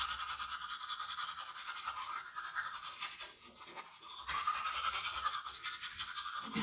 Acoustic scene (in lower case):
restroom